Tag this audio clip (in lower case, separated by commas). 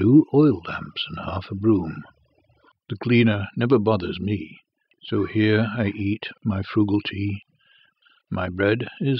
speech